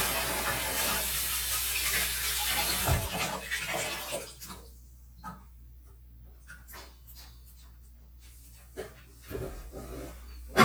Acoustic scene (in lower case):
kitchen